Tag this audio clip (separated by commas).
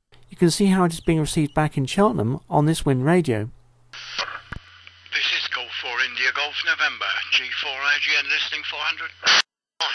Speech